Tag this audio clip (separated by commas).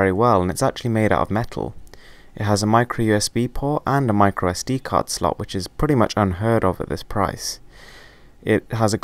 Speech